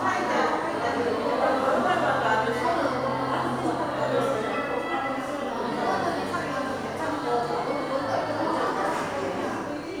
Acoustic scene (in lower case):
crowded indoor space